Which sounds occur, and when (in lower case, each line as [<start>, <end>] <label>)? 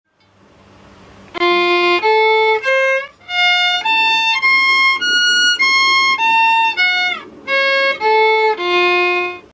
[0.05, 9.53] mechanisms
[0.06, 0.32] music